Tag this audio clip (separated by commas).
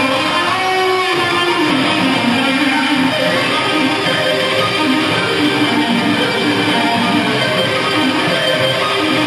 Musical instrument, Guitar, Music, Plucked string instrument